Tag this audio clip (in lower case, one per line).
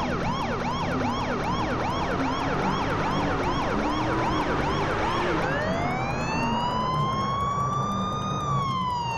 emergency vehicle
police car (siren)
siren
vehicle
car